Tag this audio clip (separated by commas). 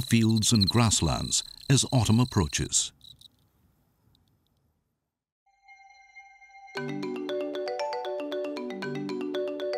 Cricket, Insect